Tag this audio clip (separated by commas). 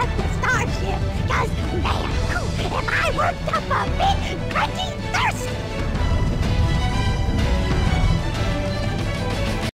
Speech, Music